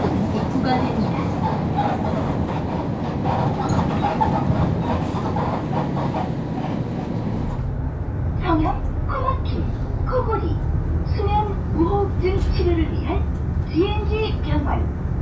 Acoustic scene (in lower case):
bus